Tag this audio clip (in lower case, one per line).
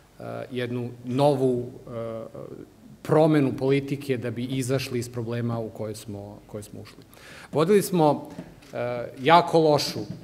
speech
man speaking